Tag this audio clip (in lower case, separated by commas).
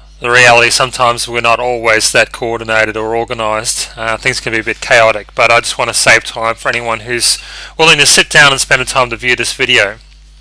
speech